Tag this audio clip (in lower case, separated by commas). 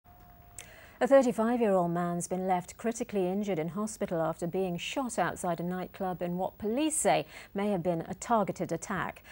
speech